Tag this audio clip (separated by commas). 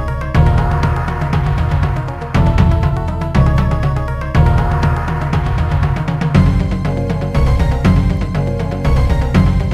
Rhythm and blues, Music